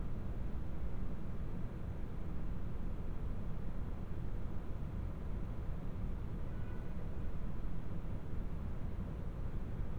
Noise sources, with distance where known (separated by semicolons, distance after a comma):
background noise